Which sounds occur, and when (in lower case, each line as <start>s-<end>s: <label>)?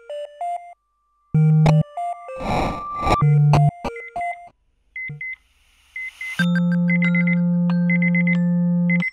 0.0s-4.5s: music
2.2s-3.1s: noise
4.9s-5.4s: alarm
5.9s-9.1s: alarm